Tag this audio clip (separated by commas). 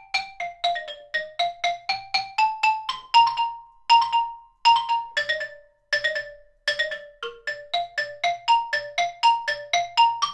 playing glockenspiel